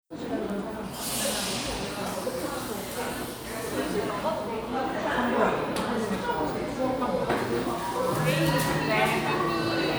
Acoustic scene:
crowded indoor space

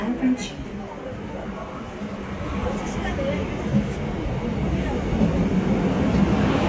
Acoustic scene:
subway station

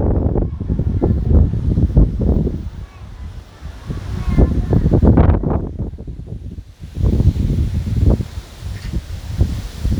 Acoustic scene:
residential area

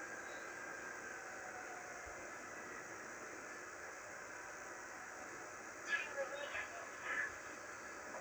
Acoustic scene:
subway train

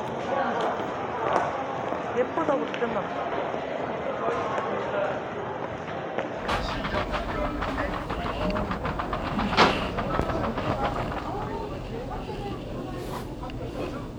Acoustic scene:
crowded indoor space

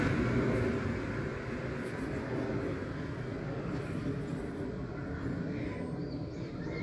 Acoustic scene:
residential area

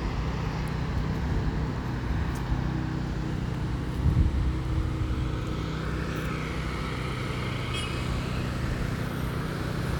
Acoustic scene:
residential area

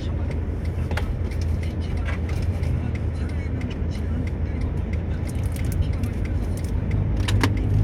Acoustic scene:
car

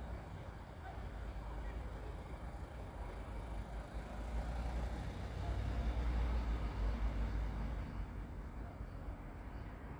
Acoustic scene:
residential area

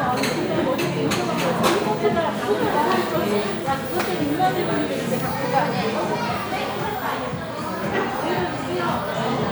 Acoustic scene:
crowded indoor space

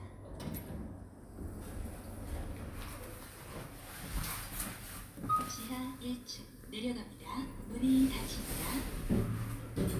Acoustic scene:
elevator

